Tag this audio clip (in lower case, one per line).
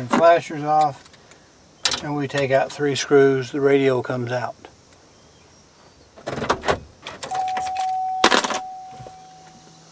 speech